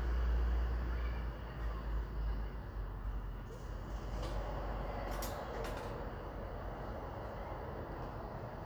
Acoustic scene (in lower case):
residential area